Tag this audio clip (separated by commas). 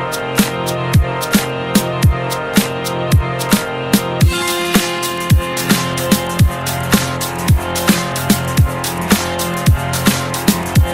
Music